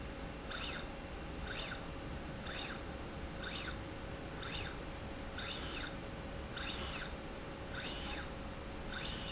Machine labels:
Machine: slide rail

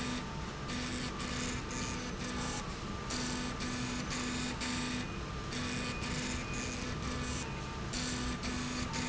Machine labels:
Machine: slide rail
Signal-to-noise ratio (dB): -6 dB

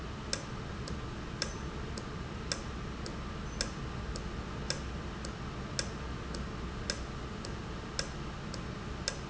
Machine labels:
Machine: valve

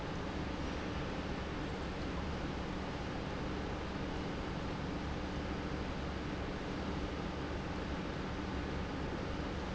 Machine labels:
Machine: pump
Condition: normal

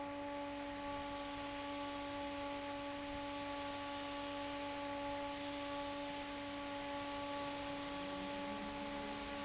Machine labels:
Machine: fan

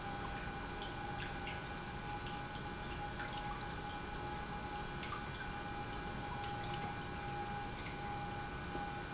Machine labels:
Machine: pump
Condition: normal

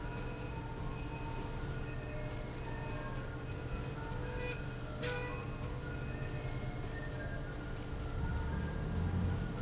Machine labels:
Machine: slide rail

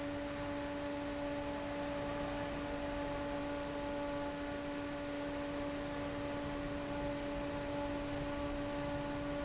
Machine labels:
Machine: fan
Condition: abnormal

